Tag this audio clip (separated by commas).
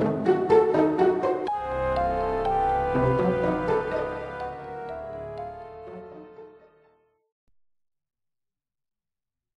Music, Video game music